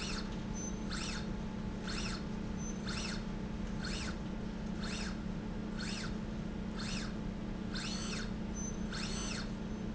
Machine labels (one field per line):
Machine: slide rail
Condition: normal